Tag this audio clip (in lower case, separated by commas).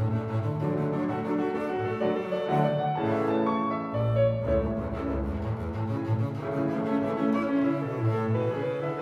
classical music, music